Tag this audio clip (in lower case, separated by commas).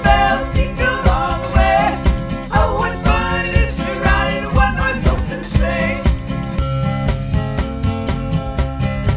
jingle